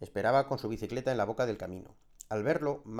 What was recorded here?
speech